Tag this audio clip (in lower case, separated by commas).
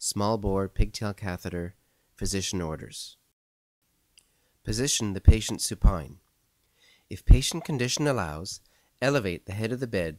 speech